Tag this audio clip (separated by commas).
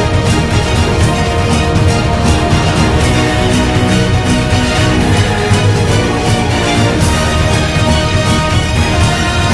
airplane